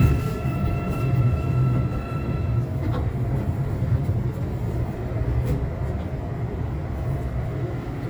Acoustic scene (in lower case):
subway train